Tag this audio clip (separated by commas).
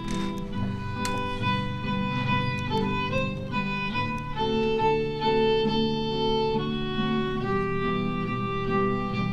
Classical music, Choir, Music, Bowed string instrument, fiddle, Wedding music, Orchestra